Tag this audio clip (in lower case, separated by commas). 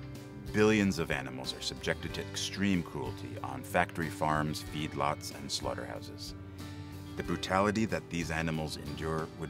speech, music